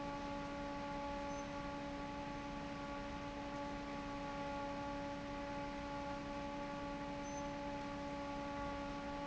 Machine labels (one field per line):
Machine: fan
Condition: normal